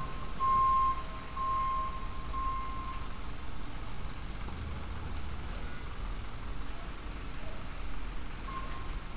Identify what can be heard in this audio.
reverse beeper